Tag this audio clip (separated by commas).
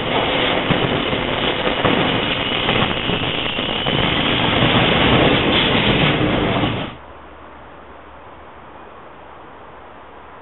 train wheels squealing